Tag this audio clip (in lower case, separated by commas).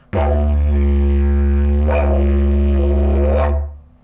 music, musical instrument